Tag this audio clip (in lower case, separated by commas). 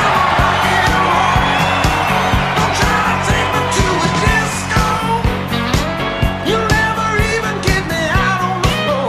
acoustic guitar, strum, rock and roll, musical instrument, guitar, music, plucked string instrument